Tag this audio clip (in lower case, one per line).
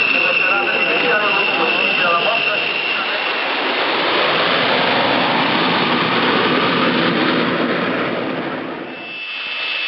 speech
aircraft
fixed-wing aircraft
vehicle